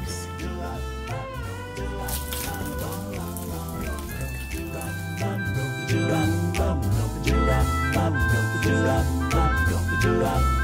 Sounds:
music, jingle (music)

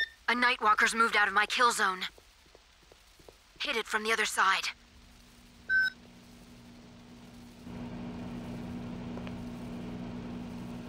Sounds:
speech

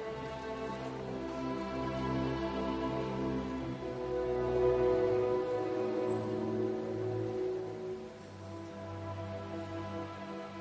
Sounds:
fiddle, music, musical instrument

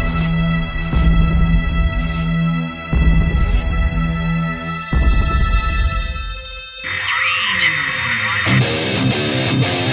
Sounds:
music

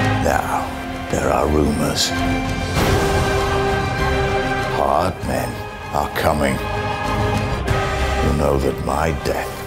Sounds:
music, speech

